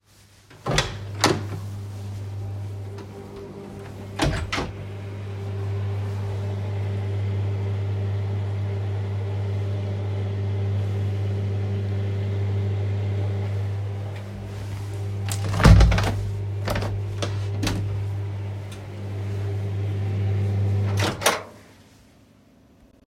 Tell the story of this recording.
The phone is worn on the wrist while moving between a storage room and hallway. A microwave starts running while a door is opened and closed. A window is also opened creating overlapping sound events.